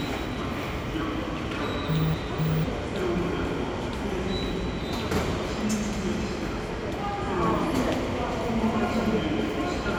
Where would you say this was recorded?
in a subway station